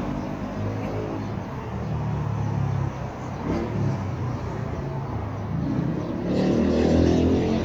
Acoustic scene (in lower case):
street